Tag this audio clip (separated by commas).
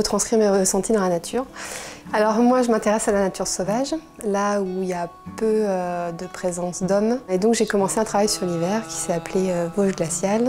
Speech, Music